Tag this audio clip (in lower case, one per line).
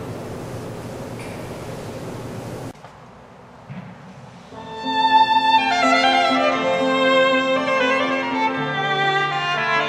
violin
music
musical instrument